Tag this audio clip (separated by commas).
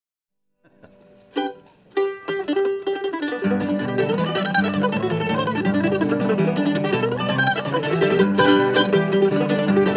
Ukulele, Music